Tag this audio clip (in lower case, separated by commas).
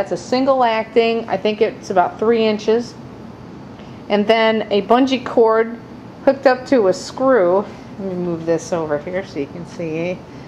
speech